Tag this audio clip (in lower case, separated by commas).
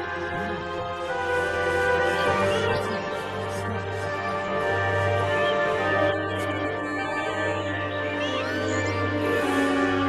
speech, scary music, music